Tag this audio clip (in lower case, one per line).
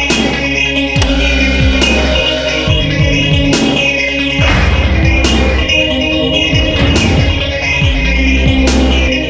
music
electronic music